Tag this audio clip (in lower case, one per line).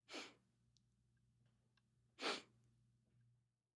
respiratory sounds